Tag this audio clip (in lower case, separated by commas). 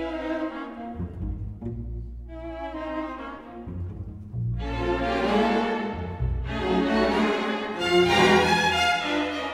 cello, music